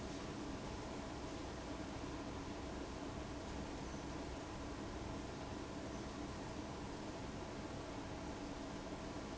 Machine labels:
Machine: fan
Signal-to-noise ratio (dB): 6 dB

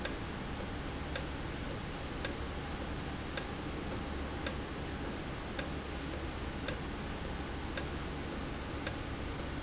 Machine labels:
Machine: valve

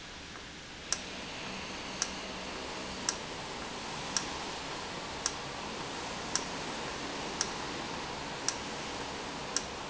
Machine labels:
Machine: valve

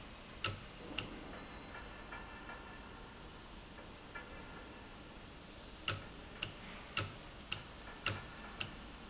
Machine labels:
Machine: valve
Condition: normal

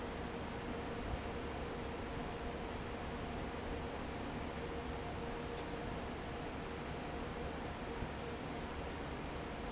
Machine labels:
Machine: fan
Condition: normal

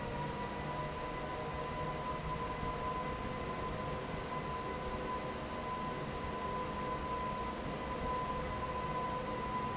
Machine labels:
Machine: fan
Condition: normal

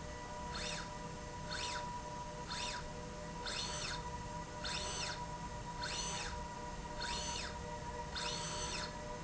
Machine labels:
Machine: slide rail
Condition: normal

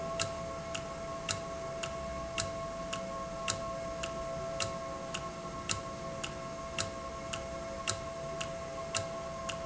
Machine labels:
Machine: valve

